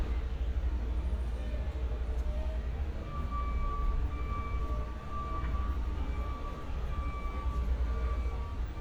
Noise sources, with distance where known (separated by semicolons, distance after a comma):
large-sounding engine; unidentified alert signal, far